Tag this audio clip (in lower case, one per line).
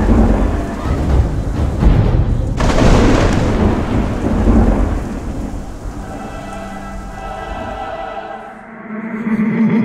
thunderstorm
thunder
rain